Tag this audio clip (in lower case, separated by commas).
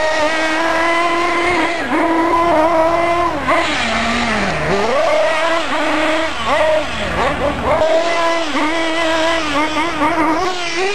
car, vehicle